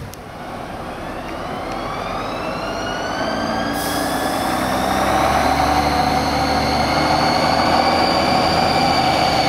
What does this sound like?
An engine gets louder and higher pitch as a vehicle takes off